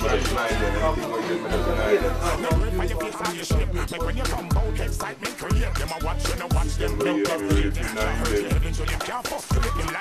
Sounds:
Music, Speech

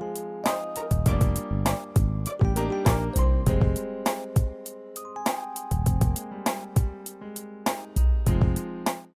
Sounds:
Music

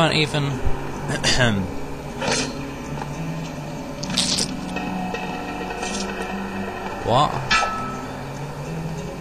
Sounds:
Speech

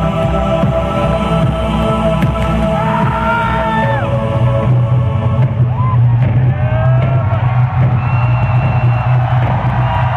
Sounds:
Crowd, Music

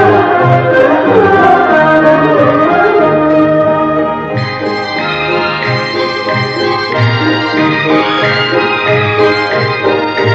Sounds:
Music, Jazz

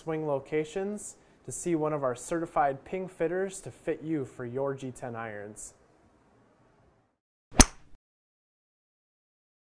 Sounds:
Speech

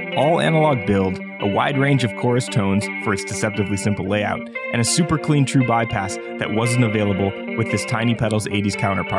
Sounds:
Music, Speech

